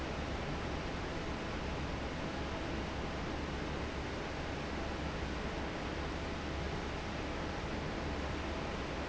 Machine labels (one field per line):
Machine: fan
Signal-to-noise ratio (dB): -6 dB